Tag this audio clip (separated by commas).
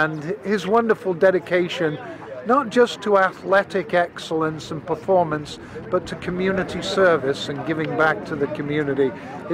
outside, urban or man-made, Speech